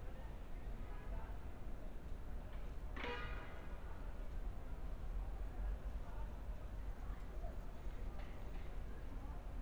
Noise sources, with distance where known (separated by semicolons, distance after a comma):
car horn; person or small group talking, far